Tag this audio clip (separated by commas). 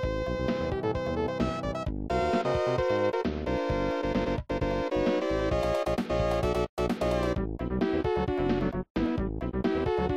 Soundtrack music